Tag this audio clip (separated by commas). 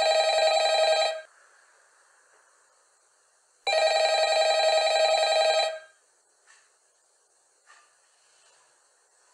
Telephone bell ringing